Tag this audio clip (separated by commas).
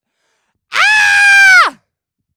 Human voice, Screaming